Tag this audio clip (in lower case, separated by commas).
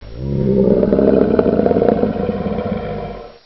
animal